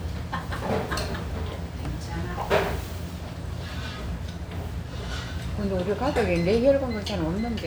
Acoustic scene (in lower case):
restaurant